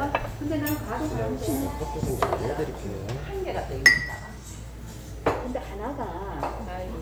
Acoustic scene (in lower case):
restaurant